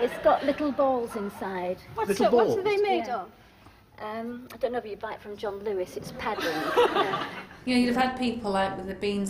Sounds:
inside a small room, speech

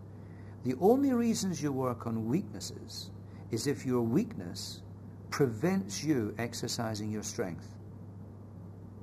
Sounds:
speech

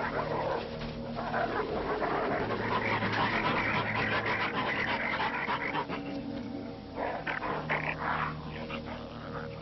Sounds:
wild animals, animal

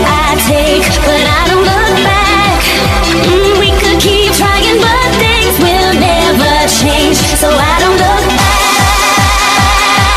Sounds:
music

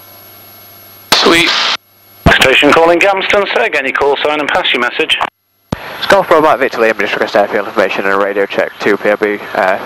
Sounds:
speech, vehicle

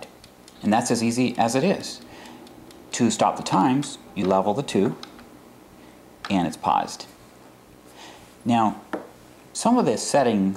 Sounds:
speech, tick-tock, tick

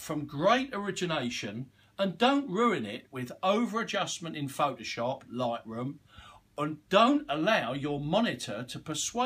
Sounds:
speech

